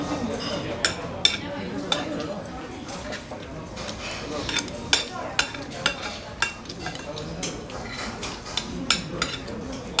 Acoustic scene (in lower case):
crowded indoor space